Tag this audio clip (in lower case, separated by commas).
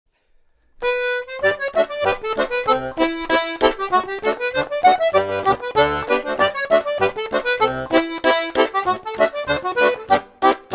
accordion, music, musical instrument, playing accordion